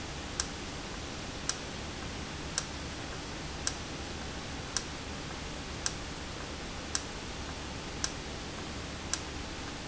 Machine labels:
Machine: valve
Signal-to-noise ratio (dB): -6 dB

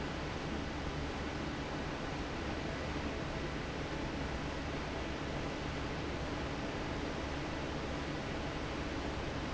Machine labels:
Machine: fan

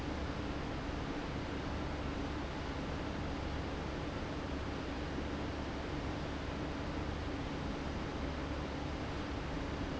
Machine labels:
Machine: fan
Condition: abnormal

